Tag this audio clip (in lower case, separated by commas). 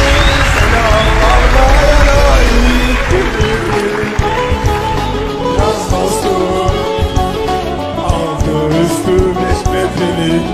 male singing, music